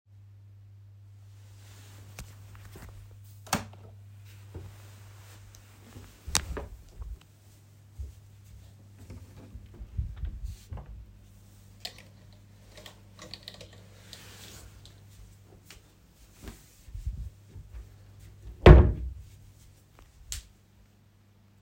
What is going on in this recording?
I lay in my bed, turn on the side to press the light switch. Then I get up, make a couple of steps, open the wardrobe door, look through my clothes which are hanging there, take a shirt and throw it on my bed. Then i take a couple of steps back to my bed.